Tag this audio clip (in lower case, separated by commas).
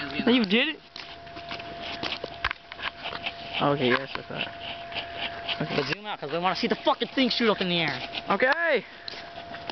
speech